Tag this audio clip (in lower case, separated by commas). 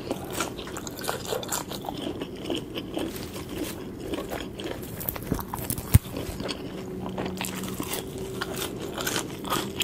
people eating crisps